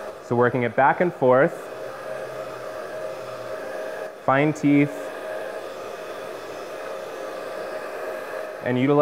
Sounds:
hair dryer drying

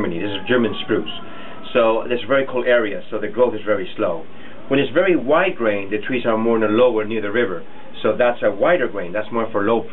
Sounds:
Speech

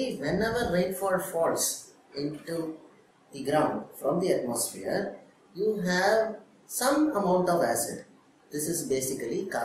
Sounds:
Speech

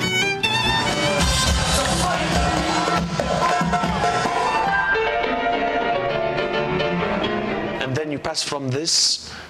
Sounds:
Speech, speech noise, Music

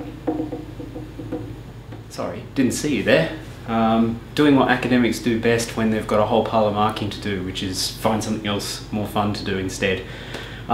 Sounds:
Speech

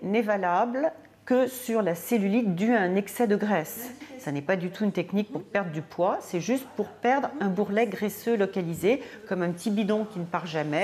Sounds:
Speech

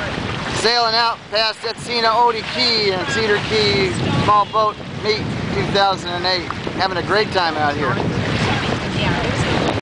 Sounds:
Boat, Vehicle, speedboat, Speech

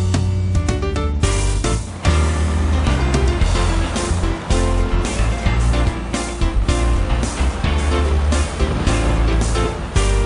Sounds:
Truck, Music

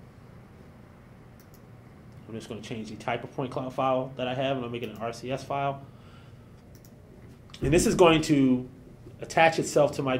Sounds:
Speech

